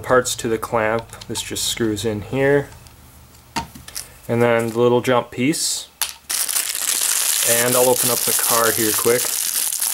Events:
0.0s-1.0s: male speech
0.9s-1.4s: generic impact sounds
1.4s-2.6s: male speech
1.7s-1.9s: generic impact sounds
2.7s-2.9s: generic impact sounds
3.3s-4.0s: generic impact sounds
4.2s-5.9s: male speech
4.3s-4.5s: generic impact sounds
5.9s-6.1s: generic impact sounds
6.3s-9.9s: crinkling
7.4s-9.4s: male speech

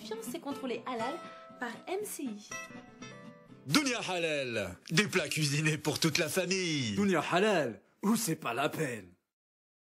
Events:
0.0s-1.2s: female speech
0.0s-3.7s: music
1.2s-1.4s: breathing
1.6s-2.5s: female speech
3.7s-4.7s: man speaking
3.7s-9.2s: background noise
4.8s-4.9s: clicking
4.9s-7.8s: man speaking
8.0s-9.1s: man speaking

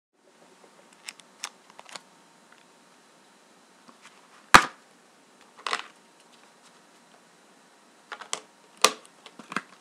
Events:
0.1s-9.8s: mechanisms
0.9s-1.2s: generic impact sounds
1.3s-1.5s: generic impact sounds
1.6s-2.0s: generic impact sounds
2.5s-2.6s: generic impact sounds
3.8s-4.4s: generic impact sounds
4.5s-4.7s: cap gun
5.4s-5.9s: generic impact sounds
6.2s-6.4s: generic impact sounds
6.6s-6.8s: generic impact sounds
6.9s-7.0s: tick
7.1s-7.2s: tick
8.1s-8.4s: generic impact sounds
8.8s-9.1s: generic impact sounds
9.2s-9.6s: generic impact sounds
9.7s-9.8s: tick

